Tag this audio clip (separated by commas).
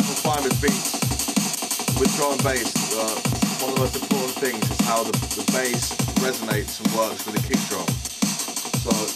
Drum and bass, Music, Speech